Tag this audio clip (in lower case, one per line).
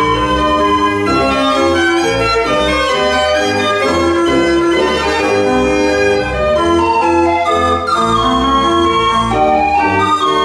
music